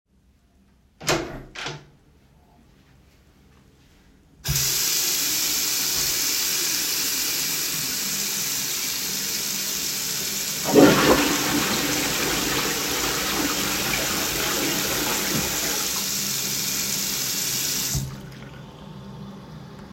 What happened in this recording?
I opened the door to the toilet. I then washed my hands and flushed the toilet.